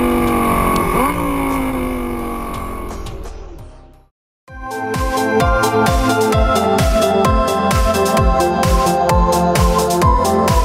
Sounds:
Music

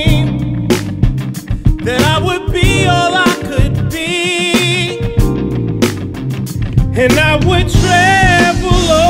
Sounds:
Music

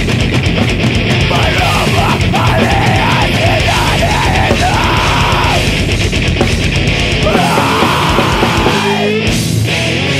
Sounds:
Music, Exciting music

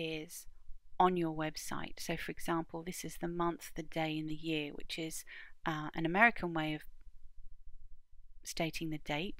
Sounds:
Speech

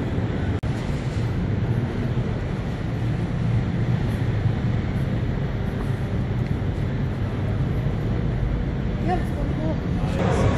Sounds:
Speech

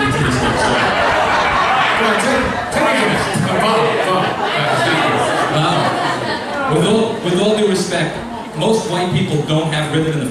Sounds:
Speech

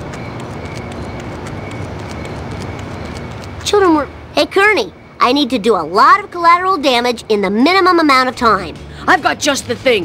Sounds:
Speech, Music, Run

